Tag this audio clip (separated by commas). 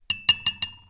dishes, pots and pans, Domestic sounds